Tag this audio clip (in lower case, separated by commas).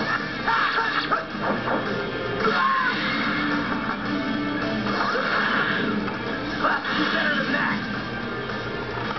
music, television, burst, speech